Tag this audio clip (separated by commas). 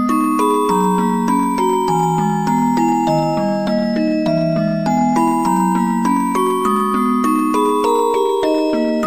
Music